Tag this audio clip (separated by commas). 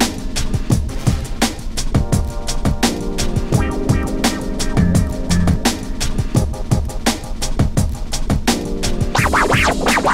disc scratching